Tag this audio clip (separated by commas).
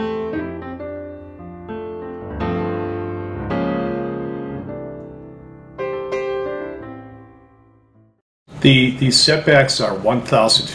Music, Speech